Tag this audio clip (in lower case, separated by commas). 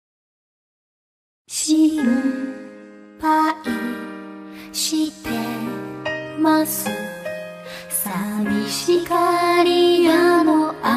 music, music of asia